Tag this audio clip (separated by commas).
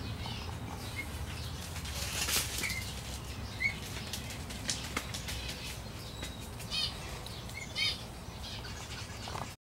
Run